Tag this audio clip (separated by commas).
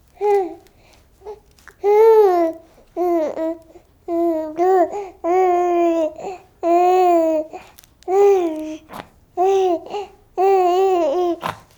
Speech, Human voice